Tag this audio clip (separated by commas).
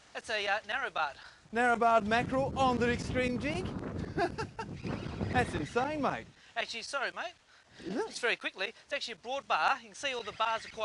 outside, rural or natural, Speech